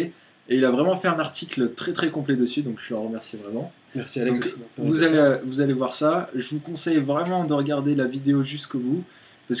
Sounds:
speech

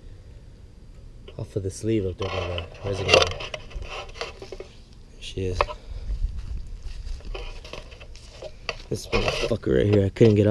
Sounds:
outside, rural or natural, speech

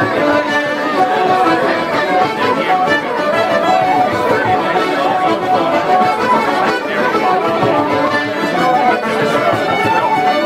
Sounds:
traditional music, speech, music

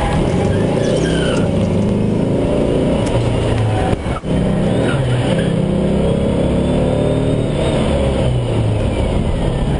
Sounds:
bus, vehicle

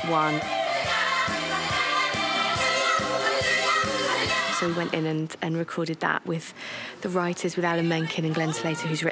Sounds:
speech, music

